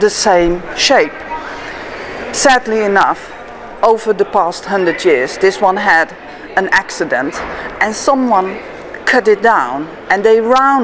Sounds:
Speech

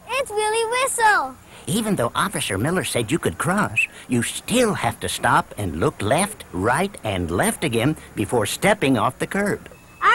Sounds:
Speech

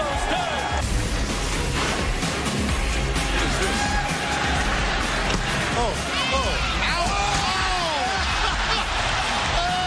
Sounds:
Music, Speech

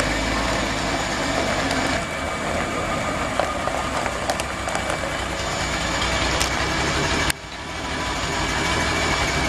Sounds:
Truck, Vehicle

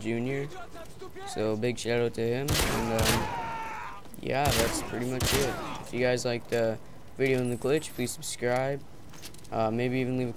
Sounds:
Speech

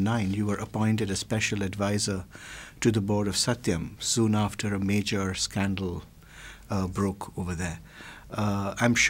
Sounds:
Speech

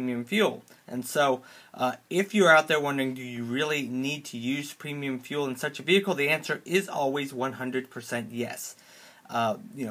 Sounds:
Speech

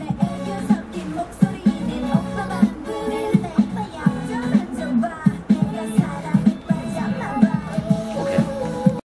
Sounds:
Music, Speech

